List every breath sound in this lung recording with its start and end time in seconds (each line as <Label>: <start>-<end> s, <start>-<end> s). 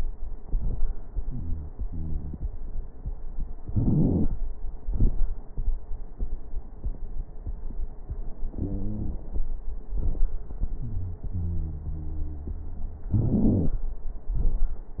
Wheeze: 1.23-1.71 s, 1.88-2.46 s, 8.55-9.25 s, 10.82-11.24 s, 11.33-13.11 s, 13.17-13.79 s